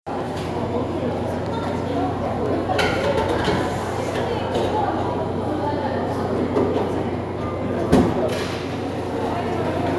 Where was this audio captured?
in a cafe